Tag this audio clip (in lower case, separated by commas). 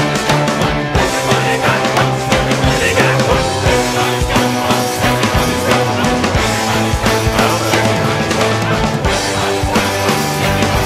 music, rock music